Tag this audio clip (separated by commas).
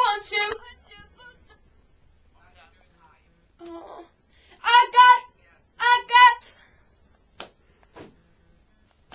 Hands